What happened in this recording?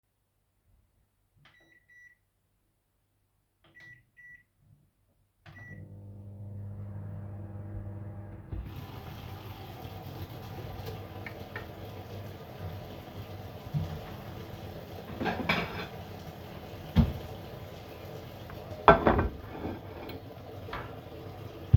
I turned on the microwave and while it was running i turned on the water and then grabbed a plate from the cupboard.